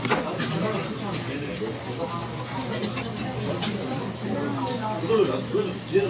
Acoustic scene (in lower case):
crowded indoor space